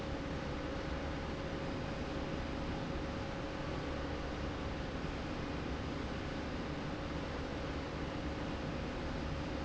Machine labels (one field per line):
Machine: slide rail